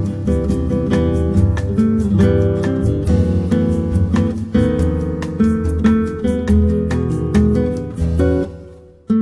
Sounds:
Music, New-age music, Background music, Happy music

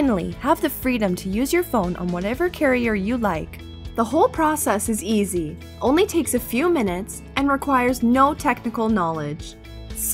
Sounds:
Speech, Music

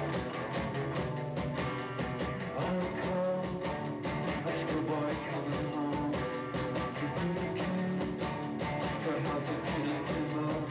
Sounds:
Music

